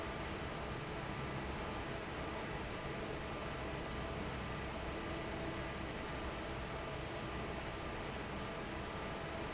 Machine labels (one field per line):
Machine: fan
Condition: normal